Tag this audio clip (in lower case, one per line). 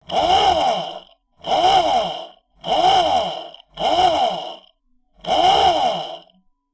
tools